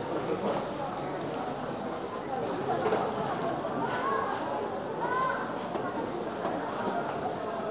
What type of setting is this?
crowded indoor space